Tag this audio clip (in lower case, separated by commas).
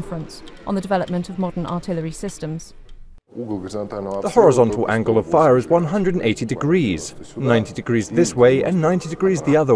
speech, inside a small room